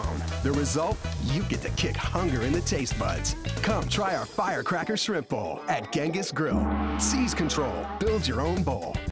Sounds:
Speech, Music

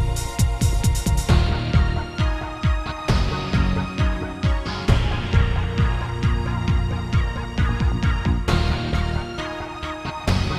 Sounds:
Music

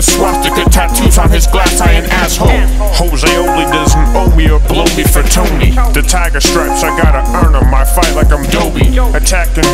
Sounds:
Rapping, Music

